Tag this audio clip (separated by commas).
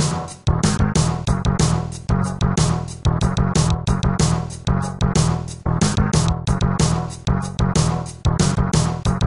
Video game music, Music